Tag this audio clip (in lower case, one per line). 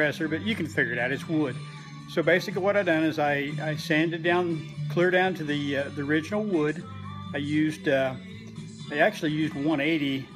music
speech